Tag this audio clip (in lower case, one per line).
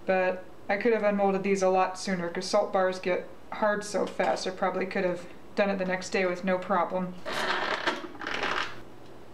inside a small room
speech